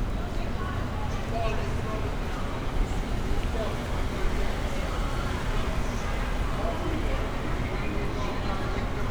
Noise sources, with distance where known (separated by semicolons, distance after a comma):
person or small group talking